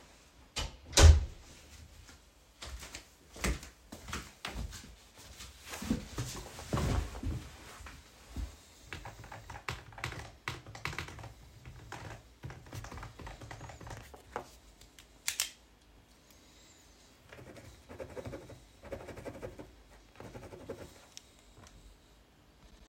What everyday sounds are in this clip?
door, footsteps, keyboard typing